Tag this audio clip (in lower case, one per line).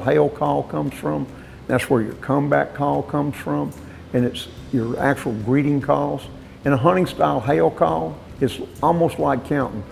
speech